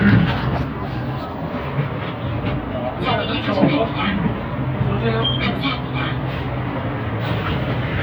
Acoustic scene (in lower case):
bus